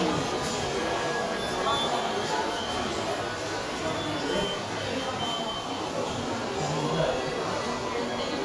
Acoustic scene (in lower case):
subway station